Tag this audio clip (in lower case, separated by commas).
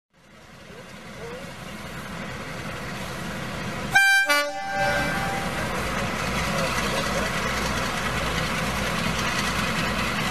vehicle, train